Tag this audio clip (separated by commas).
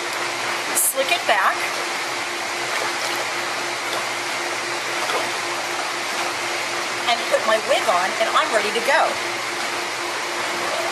Speech